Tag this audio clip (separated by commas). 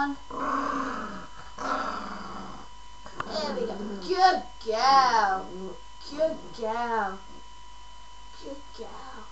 Speech, Animal, Growling, Dog